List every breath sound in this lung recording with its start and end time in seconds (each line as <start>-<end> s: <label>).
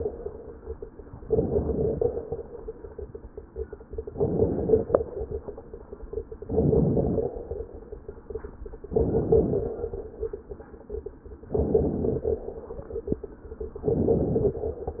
1.20-2.24 s: inhalation
1.20-2.24 s: crackles
4.10-5.14 s: inhalation
4.10-5.14 s: crackles
6.38-7.42 s: inhalation
6.38-7.42 s: crackles
8.84-9.89 s: inhalation
8.84-9.89 s: crackles
11.54-12.47 s: inhalation
11.54-12.47 s: crackles
13.85-14.65 s: inhalation
13.85-14.65 s: crackles